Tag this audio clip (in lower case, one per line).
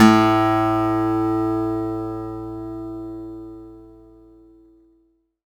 musical instrument
acoustic guitar
guitar
music
plucked string instrument